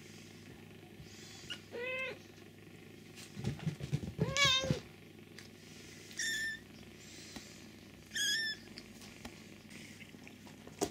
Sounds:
pets
inside a small room
animal
cat

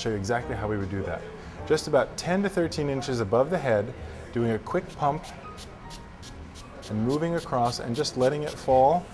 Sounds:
speech
spray
music

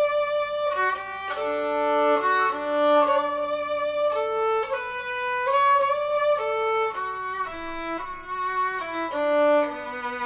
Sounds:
music
musical instrument

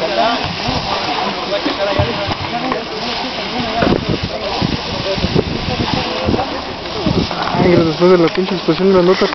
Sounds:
speech

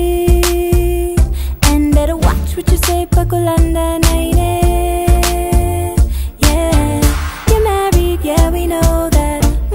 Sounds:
music

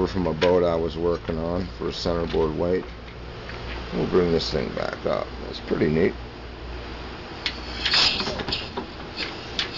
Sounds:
speech

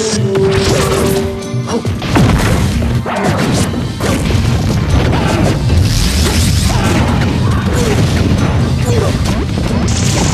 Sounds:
music
smash

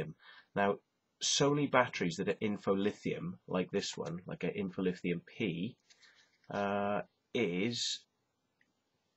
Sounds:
speech

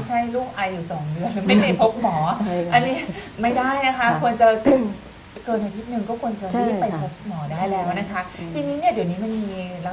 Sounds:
woman speaking
speech

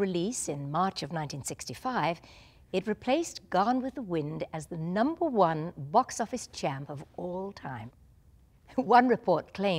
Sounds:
speech

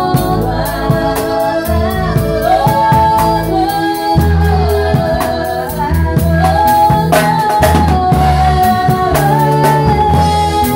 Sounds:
music

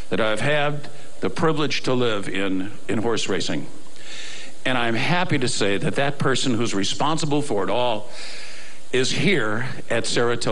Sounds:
male speech
speech
monologue

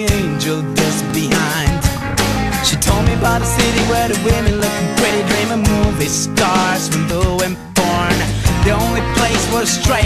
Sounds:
music

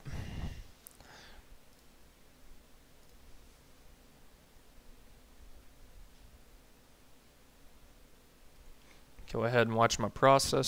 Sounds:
speech

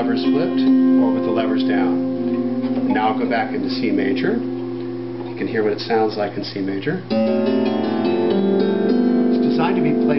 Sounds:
music
speech

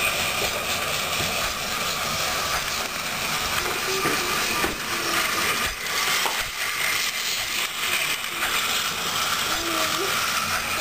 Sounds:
train
speech

